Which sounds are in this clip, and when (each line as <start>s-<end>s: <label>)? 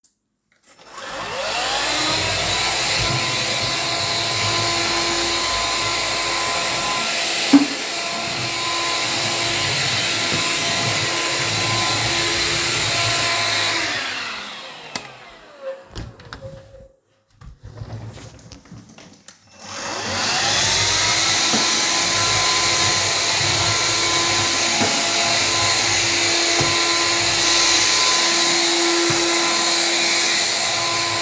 0.5s-17.0s: vacuum cleaner
7.9s-13.2s: footsteps
15.8s-16.9s: door
19.4s-31.2s: vacuum cleaner
22.1s-24.2s: footsteps